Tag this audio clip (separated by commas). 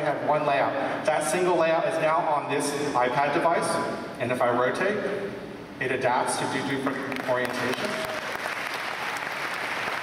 Speech